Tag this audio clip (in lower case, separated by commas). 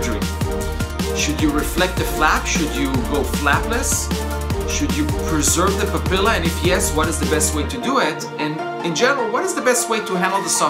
speech, music